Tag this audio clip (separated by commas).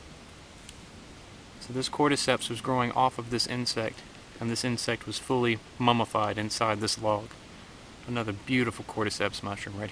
Speech